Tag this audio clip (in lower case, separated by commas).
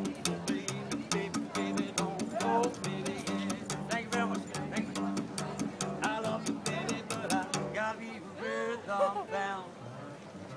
cello, double bass, bowed string instrument, pizzicato